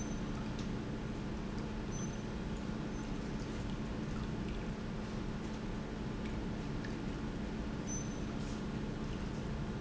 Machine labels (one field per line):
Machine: pump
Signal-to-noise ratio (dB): -6 dB